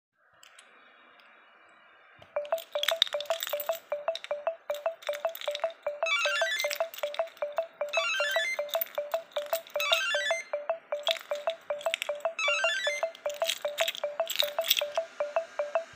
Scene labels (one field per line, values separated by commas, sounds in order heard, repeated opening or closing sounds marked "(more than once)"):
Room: hallway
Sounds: phone ringing, keys, bell ringing